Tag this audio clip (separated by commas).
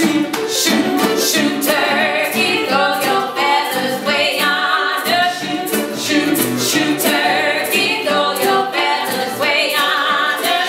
Music